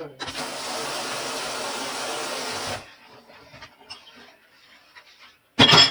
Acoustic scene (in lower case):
kitchen